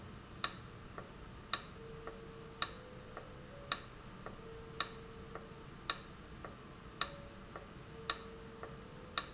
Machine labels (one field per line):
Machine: valve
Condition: abnormal